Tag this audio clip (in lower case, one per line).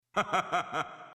laughter
human voice